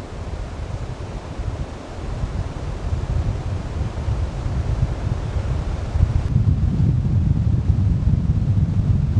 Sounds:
wind noise (microphone)

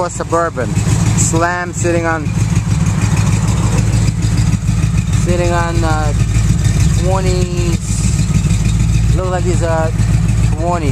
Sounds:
vehicle, speech

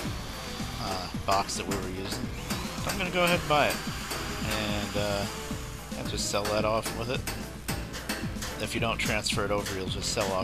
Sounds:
air brake, music, speech

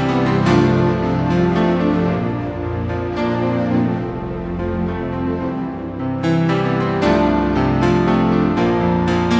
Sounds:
theme music, music

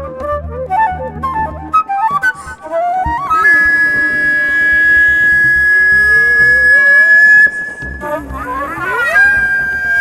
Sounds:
music, flute

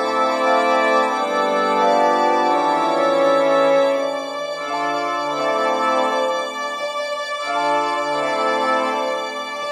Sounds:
music

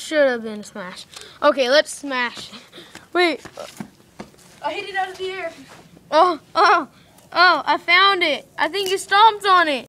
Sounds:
speech

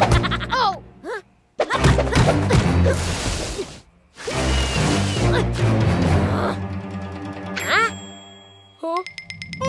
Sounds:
bouncing on trampoline

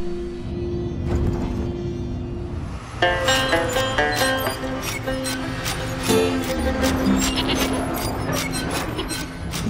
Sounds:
music, sheep

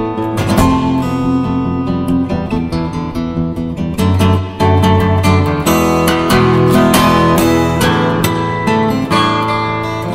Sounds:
music, acoustic guitar, guitar

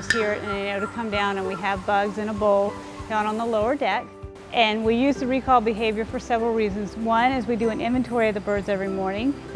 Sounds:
speech, music

